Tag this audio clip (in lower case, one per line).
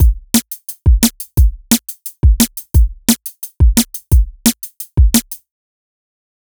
musical instrument
music
percussion
drum kit